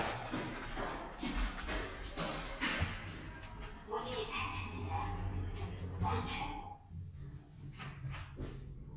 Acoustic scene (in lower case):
elevator